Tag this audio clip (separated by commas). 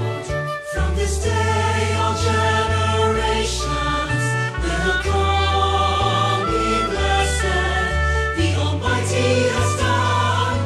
Music